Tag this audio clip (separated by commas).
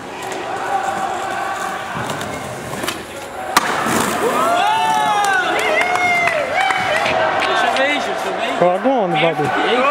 Speech